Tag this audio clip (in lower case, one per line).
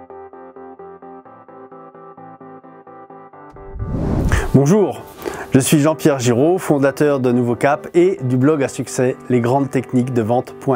speech
music